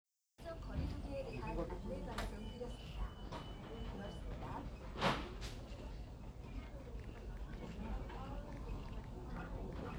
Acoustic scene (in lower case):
crowded indoor space